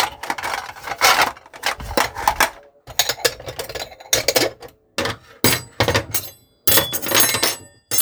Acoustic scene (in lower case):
kitchen